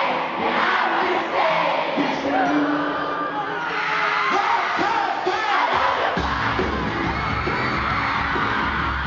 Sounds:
cheering, crowd

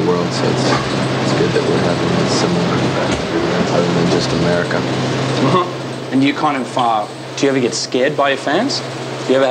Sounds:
speech

